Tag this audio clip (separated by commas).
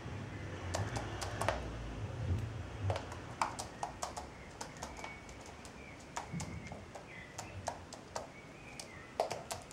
Bird